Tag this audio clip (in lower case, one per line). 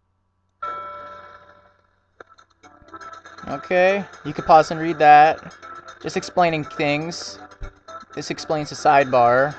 music
speech
sound effect